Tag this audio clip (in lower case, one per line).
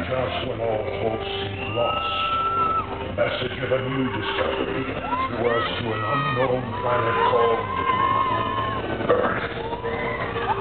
music
theme music
speech